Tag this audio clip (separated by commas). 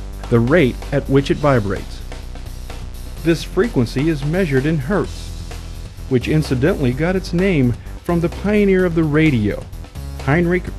Music, Speech